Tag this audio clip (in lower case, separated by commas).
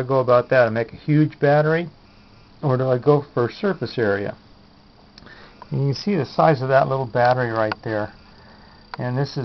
speech